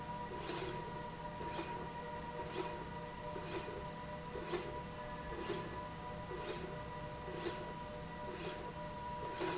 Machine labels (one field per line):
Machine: slide rail